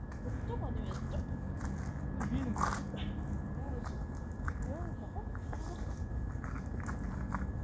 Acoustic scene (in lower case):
park